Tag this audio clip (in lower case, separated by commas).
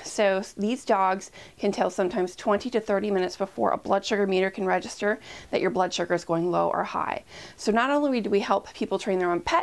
speech